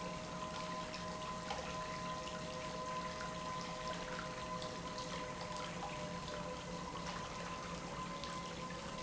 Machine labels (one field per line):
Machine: pump